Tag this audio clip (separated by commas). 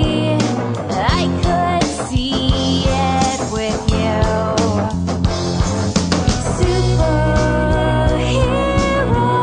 Music, Jazz